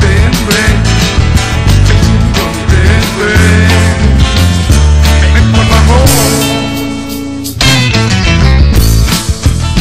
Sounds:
music

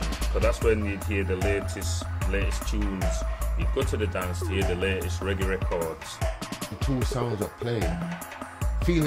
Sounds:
music, speech

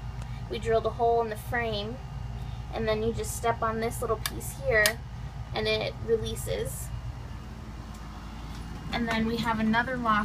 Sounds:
speech

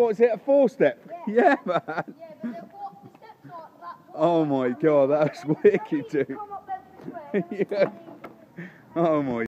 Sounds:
speech

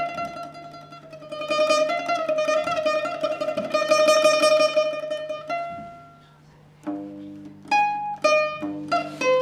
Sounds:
music, musical instrument, guitar, plucked string instrument

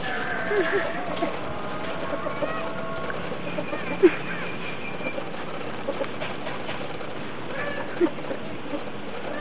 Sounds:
animal, rooster, pets

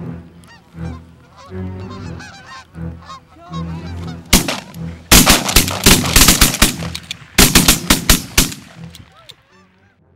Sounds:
machine gun, music, bird, duck

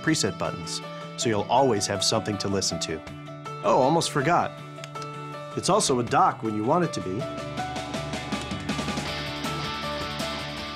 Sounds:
speech, blues, music

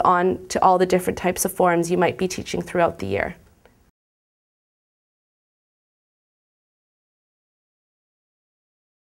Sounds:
speech

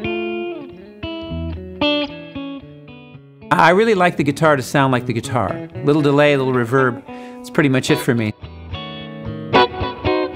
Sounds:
speech, plucked string instrument, musical instrument, guitar, bass guitar, blues, music

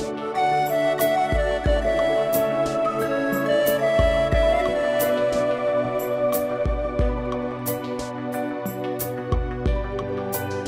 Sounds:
music

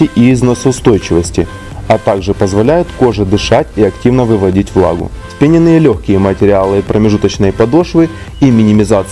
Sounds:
speech, music

